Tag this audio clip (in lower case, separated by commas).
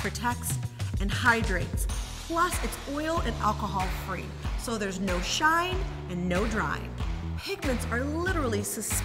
music, speech